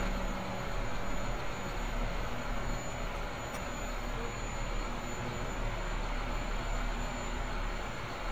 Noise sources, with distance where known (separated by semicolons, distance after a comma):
large-sounding engine, near